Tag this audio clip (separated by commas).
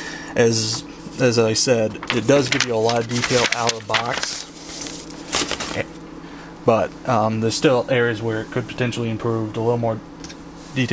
Speech, inside a small room